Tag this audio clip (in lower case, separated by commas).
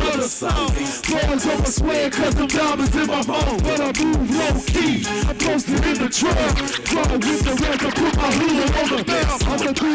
music, pop music